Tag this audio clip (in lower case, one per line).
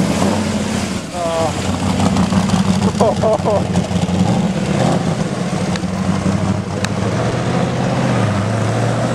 idling
engine
vehicle
medium engine (mid frequency)
car
accelerating